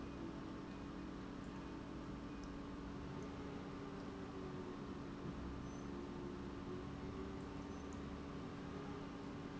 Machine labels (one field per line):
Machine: pump